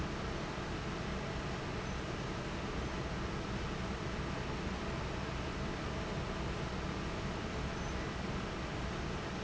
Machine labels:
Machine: fan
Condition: normal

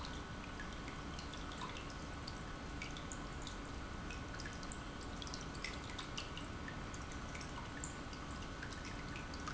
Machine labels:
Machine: pump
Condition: normal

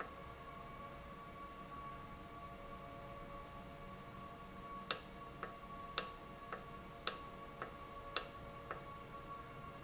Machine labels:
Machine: valve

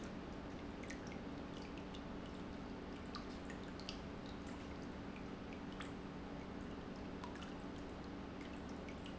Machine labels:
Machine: pump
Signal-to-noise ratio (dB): 6 dB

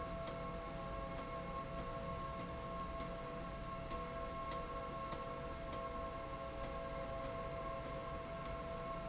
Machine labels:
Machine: slide rail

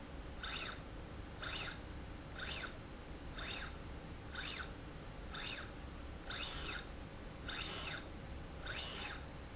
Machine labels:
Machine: slide rail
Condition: normal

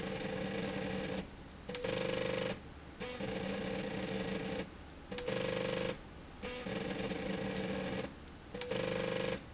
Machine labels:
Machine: slide rail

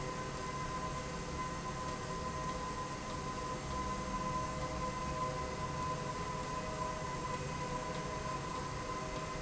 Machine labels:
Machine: slide rail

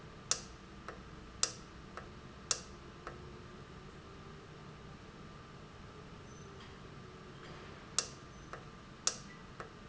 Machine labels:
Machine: valve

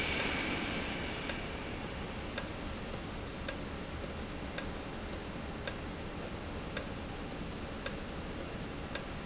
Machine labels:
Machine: valve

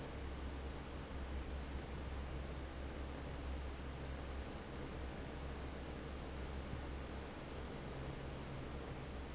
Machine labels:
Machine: fan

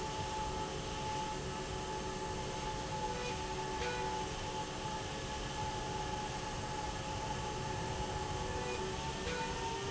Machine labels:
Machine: slide rail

